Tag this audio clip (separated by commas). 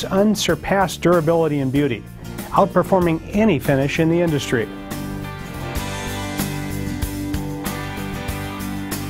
Music, Speech